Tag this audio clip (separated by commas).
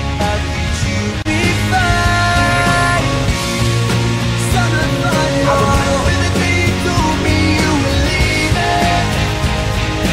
Grunge